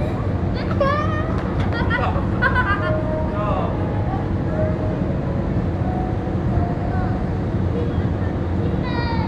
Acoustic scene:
park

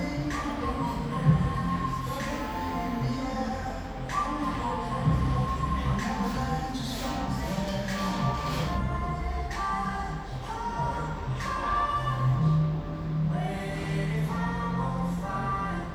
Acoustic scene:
cafe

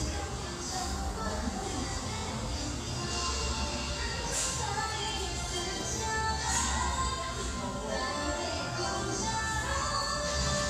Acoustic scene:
restaurant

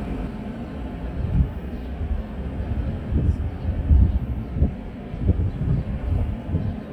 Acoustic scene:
residential area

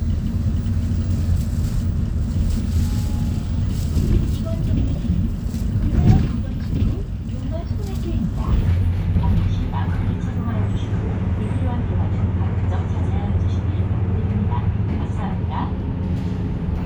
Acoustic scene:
bus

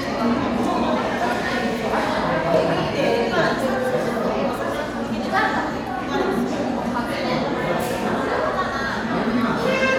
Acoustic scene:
crowded indoor space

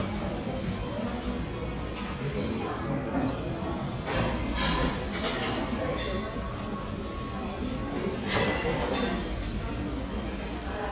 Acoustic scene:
crowded indoor space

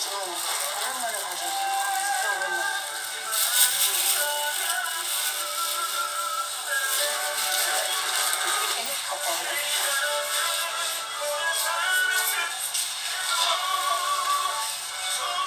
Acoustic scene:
crowded indoor space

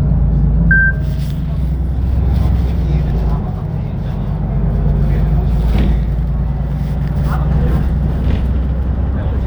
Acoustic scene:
bus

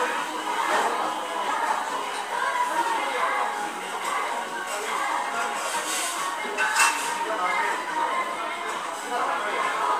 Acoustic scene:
restaurant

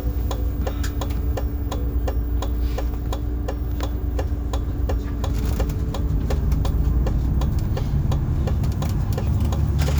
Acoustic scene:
bus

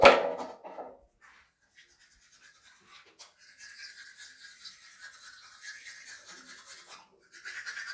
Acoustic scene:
restroom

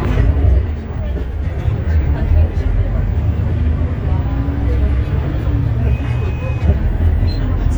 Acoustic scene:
bus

